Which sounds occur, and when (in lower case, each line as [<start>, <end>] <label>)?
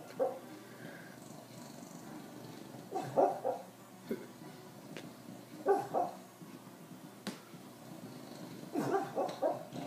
[0.00, 2.70] dog
[0.00, 9.85] music
[0.00, 9.85] television
[2.89, 3.68] dog
[4.03, 4.31] dog
[4.90, 5.01] tick
[5.63, 6.17] dog
[7.19, 7.31] tick
[7.93, 9.85] dog
[9.23, 9.35] tick